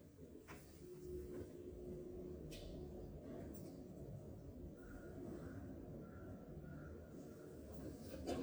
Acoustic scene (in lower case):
elevator